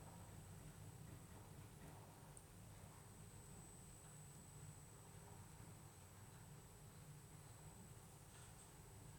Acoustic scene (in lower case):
elevator